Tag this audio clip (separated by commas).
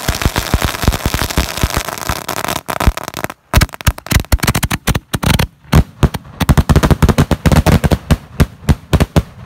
lighting firecrackers